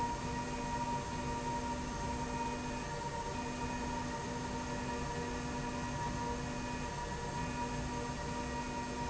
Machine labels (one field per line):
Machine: slide rail